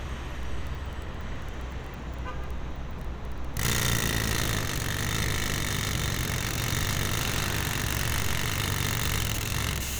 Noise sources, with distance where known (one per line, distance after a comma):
jackhammer, near
car horn